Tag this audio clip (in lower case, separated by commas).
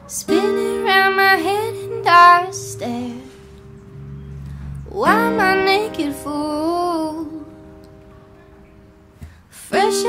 music